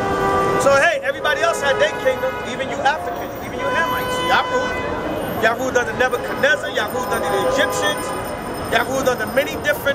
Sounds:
speech

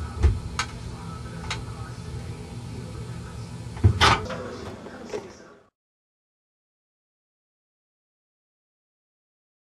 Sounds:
speech

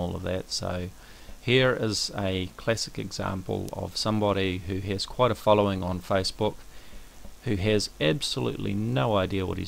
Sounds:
speech

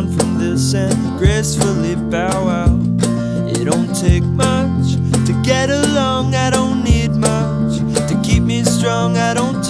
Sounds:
music

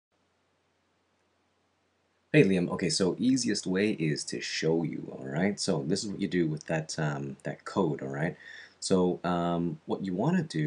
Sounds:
speech
narration

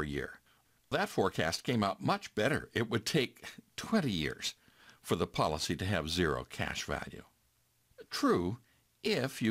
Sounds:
narration

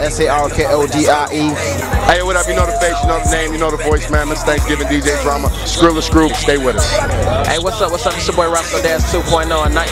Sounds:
music
pop music
speech

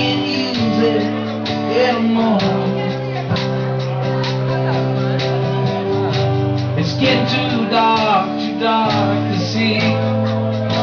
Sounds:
speech
music

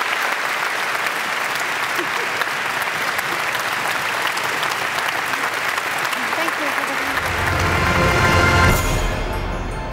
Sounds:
applause

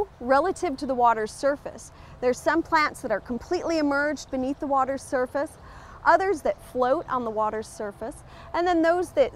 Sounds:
speech

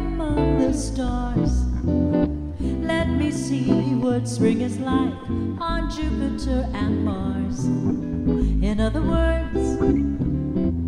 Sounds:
music
jazz

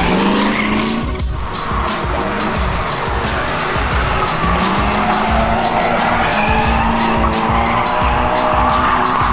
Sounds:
vehicle
car
music

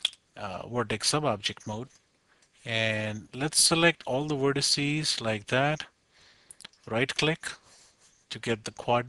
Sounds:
speech

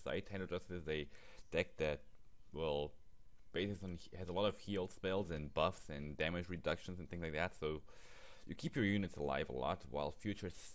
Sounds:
speech

